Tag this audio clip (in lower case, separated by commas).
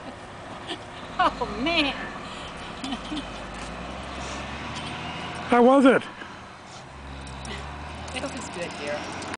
speech